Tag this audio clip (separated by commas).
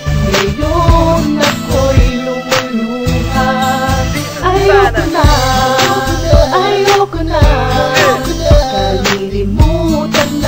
Jazz, Music